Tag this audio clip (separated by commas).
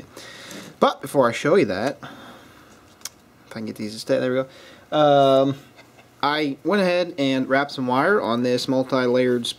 Speech